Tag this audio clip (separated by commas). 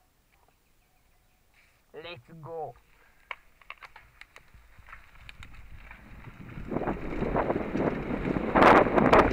Wind, Wind noise (microphone)